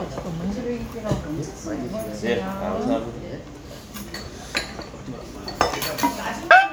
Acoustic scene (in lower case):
crowded indoor space